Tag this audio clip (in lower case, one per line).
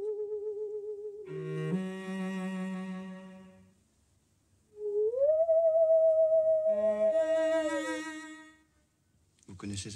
playing theremin